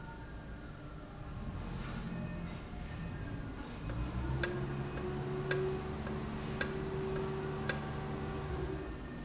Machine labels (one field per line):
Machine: valve